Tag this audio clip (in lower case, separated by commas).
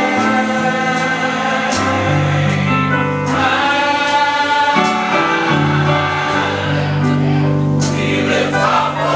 choir, music, male singing, female singing